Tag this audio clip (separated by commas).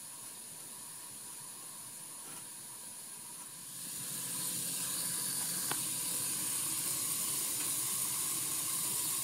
Bicycle